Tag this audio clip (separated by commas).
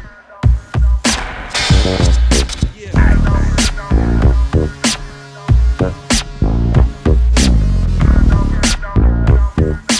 Hip hop music, Electronica, Music